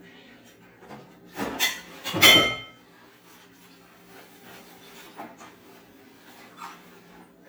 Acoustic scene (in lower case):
kitchen